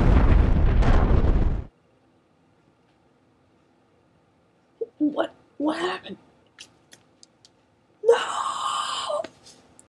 A boom occurs and a young male speaks